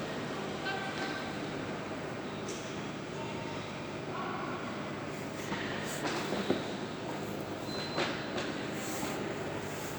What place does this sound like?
subway station